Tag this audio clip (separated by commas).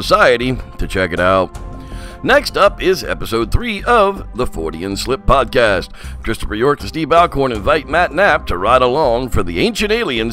Music, Speech